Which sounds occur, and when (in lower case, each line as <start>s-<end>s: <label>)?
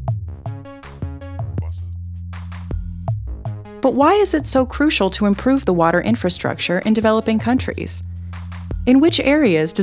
0.0s-9.8s: music
1.5s-1.9s: man speaking
3.8s-8.0s: woman speaking
8.8s-9.8s: woman speaking